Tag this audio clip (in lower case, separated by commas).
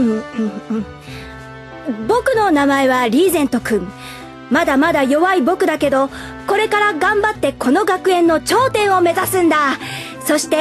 music, speech